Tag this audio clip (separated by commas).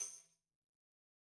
Percussion, Musical instrument, Tambourine, Music